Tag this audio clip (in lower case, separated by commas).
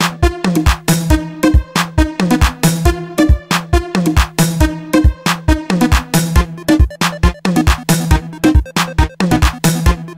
music, afrobeat